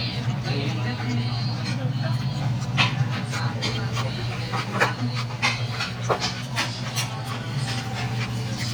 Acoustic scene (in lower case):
restaurant